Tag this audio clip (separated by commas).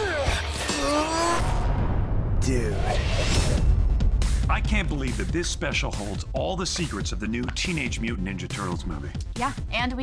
Music, Speech